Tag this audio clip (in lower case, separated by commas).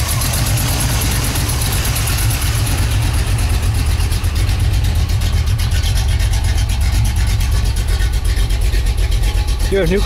speech